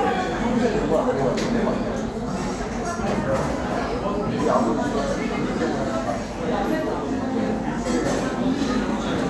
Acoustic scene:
crowded indoor space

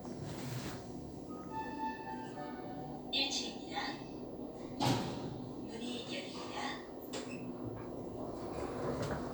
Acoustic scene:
elevator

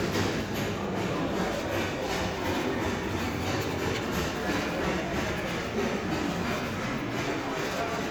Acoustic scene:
crowded indoor space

